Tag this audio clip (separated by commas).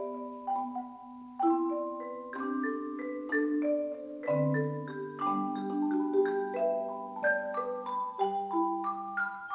Musical instrument, Music, xylophone, Vibraphone, Percussion